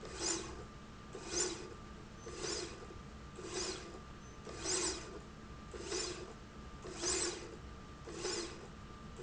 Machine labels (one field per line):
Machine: slide rail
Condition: normal